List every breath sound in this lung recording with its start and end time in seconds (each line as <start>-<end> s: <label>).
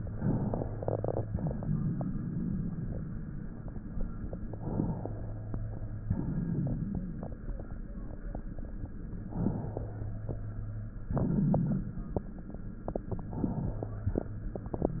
4.40-6.05 s: inhalation
6.03-7.46 s: exhalation
9.24-10.93 s: inhalation
10.93-12.91 s: exhalation